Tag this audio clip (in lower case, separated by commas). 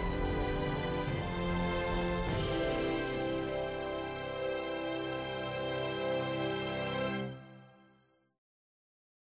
music